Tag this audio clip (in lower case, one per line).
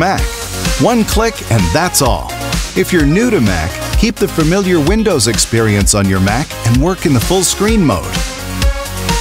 speech
music